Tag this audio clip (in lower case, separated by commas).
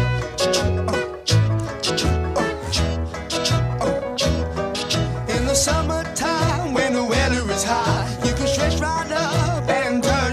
music